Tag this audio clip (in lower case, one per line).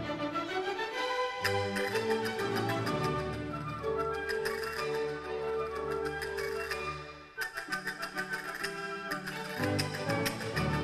playing castanets